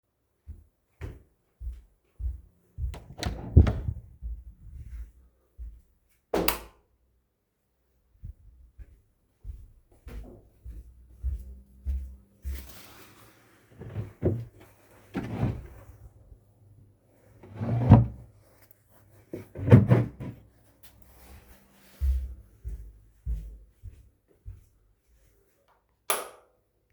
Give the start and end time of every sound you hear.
0.0s-3.8s: footsteps
3.1s-4.2s: door
4.0s-5.8s: footsteps
6.0s-6.9s: door
8.1s-13.1s: footsteps
13.7s-15.9s: wardrobe or drawer
17.3s-18.5s: wardrobe or drawer
19.2s-20.5s: wardrobe or drawer
21.9s-25.8s: footsteps
25.7s-26.9s: light switch

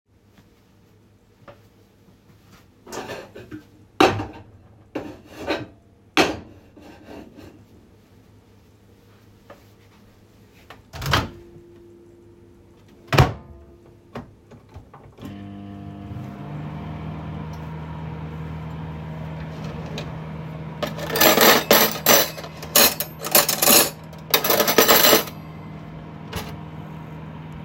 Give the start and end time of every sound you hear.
2.8s-7.6s: cutlery and dishes
10.7s-11.4s: microwave
12.9s-13.6s: microwave
15.1s-27.6s: microwave
20.9s-25.5s: cutlery and dishes

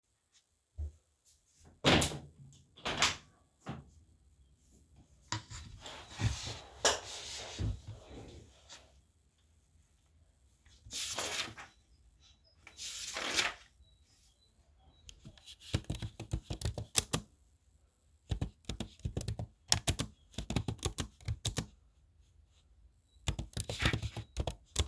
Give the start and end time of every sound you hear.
1.8s-3.9s: window
15.6s-17.4s: keyboard typing
18.2s-21.7s: keyboard typing
23.2s-24.9s: keyboard typing

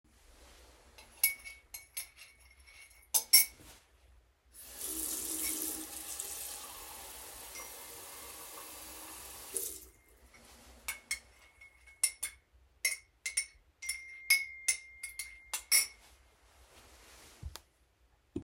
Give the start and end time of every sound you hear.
1.2s-3.8s: cutlery and dishes
4.6s-9.9s: running water
7.5s-8.2s: phone ringing
10.8s-11.3s: cutlery and dishes
12.0s-12.4s: cutlery and dishes
12.8s-13.1s: cutlery and dishes
13.2s-13.6s: cutlery and dishes
13.8s-16.0s: phone ringing
13.8s-16.0s: cutlery and dishes

